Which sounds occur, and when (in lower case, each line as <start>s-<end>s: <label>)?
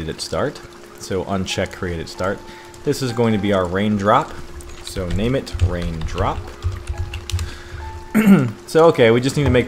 0.0s-0.5s: male speech
0.0s-9.6s: mechanisms
0.0s-9.6s: music
0.0s-9.6s: rain on surface
0.1s-0.4s: clicking
1.0s-2.3s: male speech
1.6s-1.8s: clicking
2.4s-2.8s: breathing
2.8s-4.3s: male speech
3.5s-3.7s: clicking
4.8s-4.9s: tick
4.8s-5.4s: male speech
4.9s-5.3s: computer keyboard
5.5s-6.4s: computer keyboard
5.6s-6.4s: male speech
6.6s-8.0s: computer keyboard
7.3s-7.8s: breathing
8.1s-8.5s: throat clearing
8.3s-8.5s: clicking
8.6s-9.6s: male speech
9.4s-9.6s: thump